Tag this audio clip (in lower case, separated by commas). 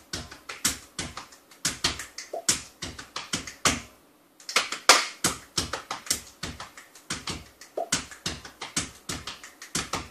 percussion